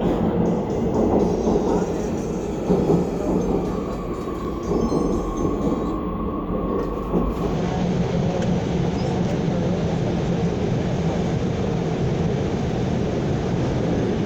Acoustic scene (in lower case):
subway train